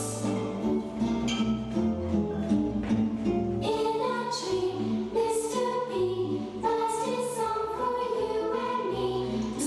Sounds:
music

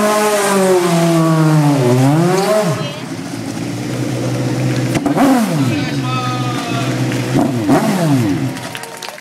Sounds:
speech

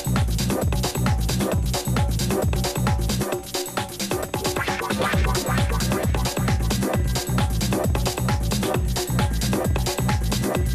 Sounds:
music
percussion

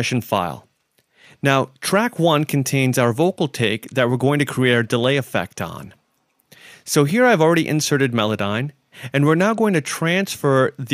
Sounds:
speech

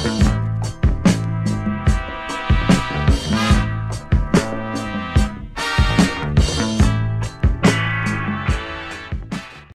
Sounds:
musical instrument
music
drum kit

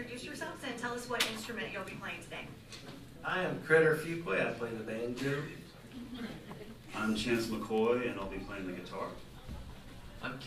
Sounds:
speech

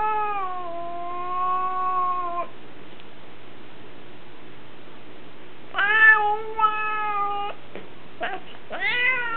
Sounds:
animal
pets
cat

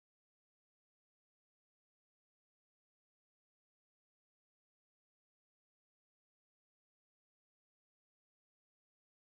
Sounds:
silence

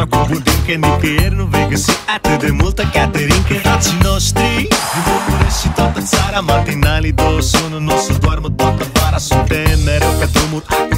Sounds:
music

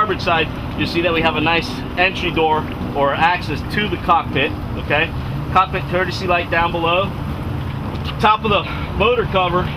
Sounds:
speech
motorboat
vehicle

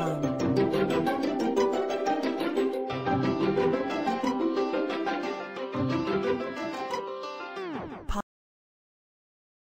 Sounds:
funny music
music

